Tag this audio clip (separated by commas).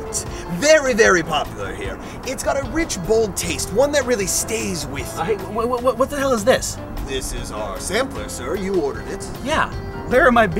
Speech, Music